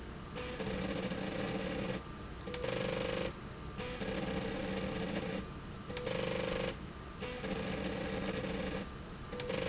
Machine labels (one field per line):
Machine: slide rail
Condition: abnormal